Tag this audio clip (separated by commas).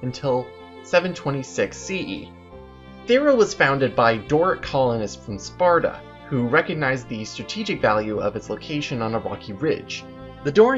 Speech, Music